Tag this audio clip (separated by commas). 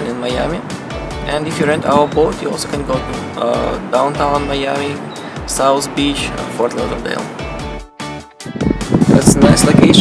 Speech, Vehicle, Music